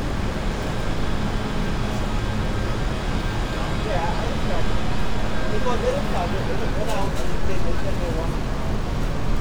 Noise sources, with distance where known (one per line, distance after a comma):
person or small group talking, near